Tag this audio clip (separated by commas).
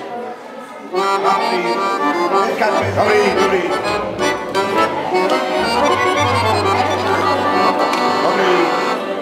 Music, Speech